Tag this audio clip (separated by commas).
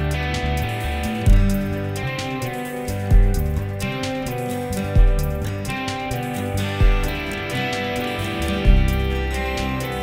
Music, Music of Latin America